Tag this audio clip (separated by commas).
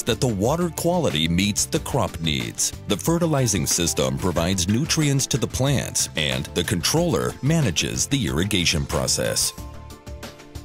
Speech, Music